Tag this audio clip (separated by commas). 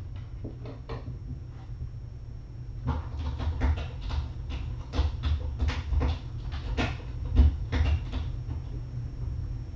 Tap